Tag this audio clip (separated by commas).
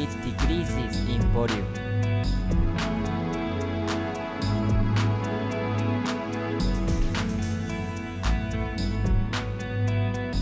Music, Speech